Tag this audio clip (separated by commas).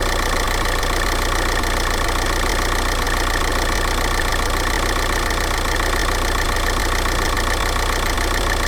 Vehicle, Motor vehicle (road), Idling, Engine, Car